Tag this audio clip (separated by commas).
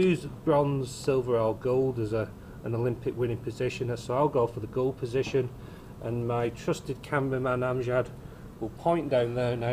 Speech